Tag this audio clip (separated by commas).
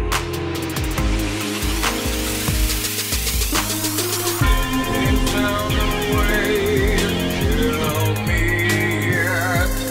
Music